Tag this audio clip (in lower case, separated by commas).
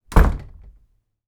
domestic sounds, slam, door